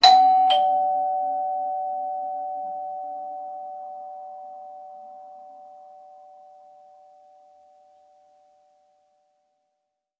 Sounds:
door, home sounds, doorbell, alarm

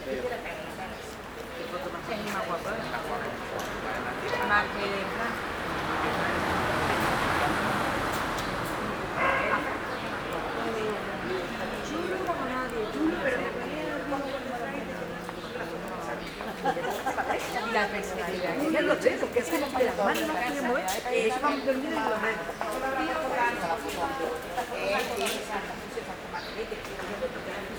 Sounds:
dog, animal, pets

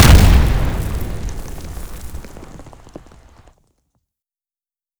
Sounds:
explosion

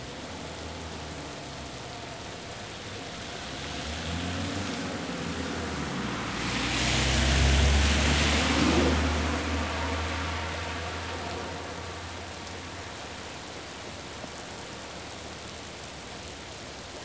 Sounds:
water, rain

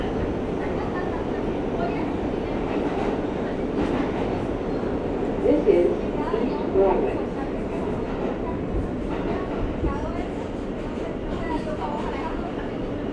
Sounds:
underground, rail transport, vehicle

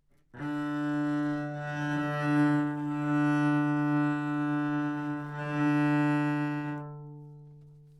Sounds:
musical instrument, bowed string instrument, music

